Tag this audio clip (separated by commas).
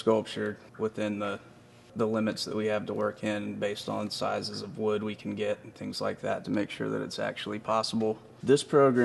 Speech